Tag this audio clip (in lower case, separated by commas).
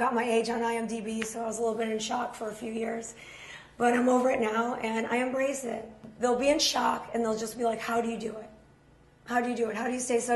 speech